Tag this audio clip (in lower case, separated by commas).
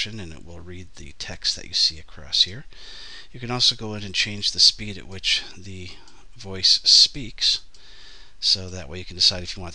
speech